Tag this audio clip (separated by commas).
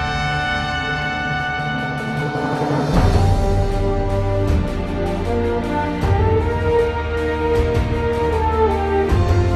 Music